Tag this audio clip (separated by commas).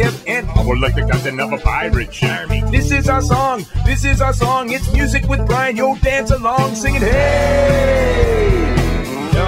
Music